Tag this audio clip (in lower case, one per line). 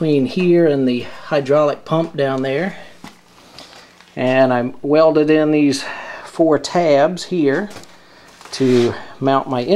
speech